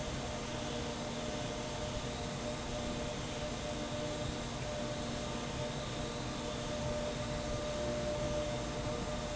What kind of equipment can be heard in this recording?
fan